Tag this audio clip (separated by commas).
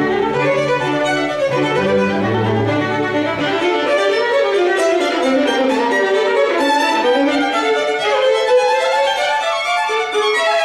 String section